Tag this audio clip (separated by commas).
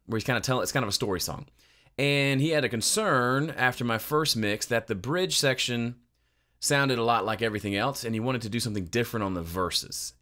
Speech